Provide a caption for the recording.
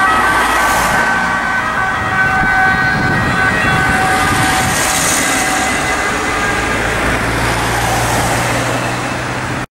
Sirens going off and cars passing by